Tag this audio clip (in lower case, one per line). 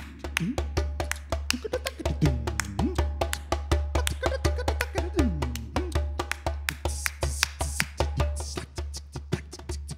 playing djembe